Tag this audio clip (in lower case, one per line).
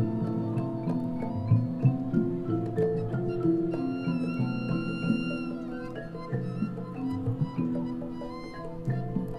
music